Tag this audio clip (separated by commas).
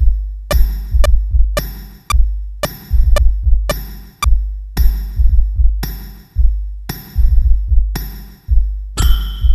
Synthesizer, Sampler, Musical instrument, Music